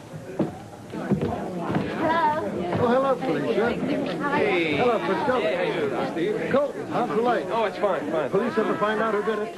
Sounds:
chatter, speech

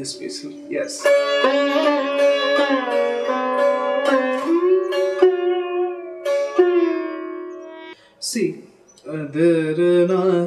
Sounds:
playing sitar

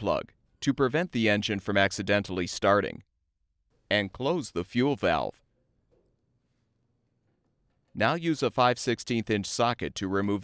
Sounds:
speech

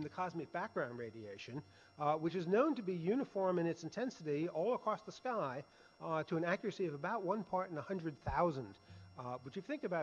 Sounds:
speech

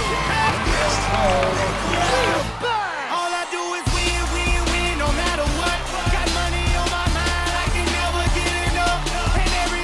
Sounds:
music

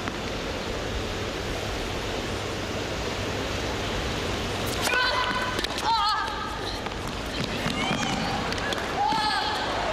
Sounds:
speech, inside a public space

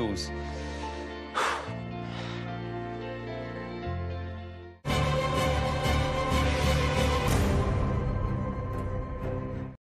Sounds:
male speech, speech, music

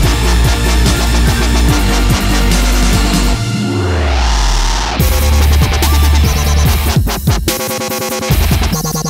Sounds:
sampler, music

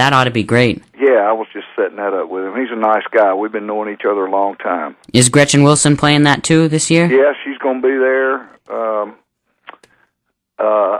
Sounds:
speech

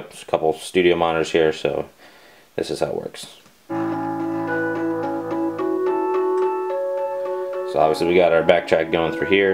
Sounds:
music, electronic music

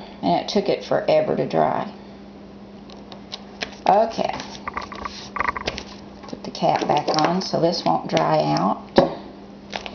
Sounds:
speech, inside a small room

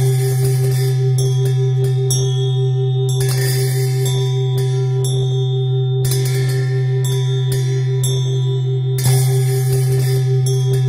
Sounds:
music

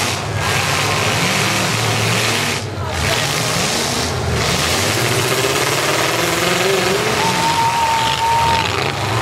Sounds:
car, vehicle, outside, rural or natural, speech

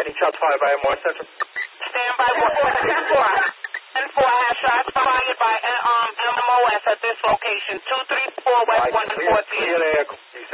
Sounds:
police radio chatter

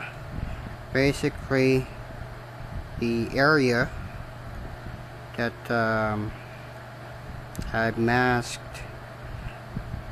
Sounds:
speech

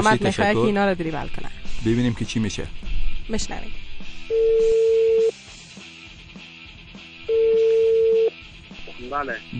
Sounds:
music, speech

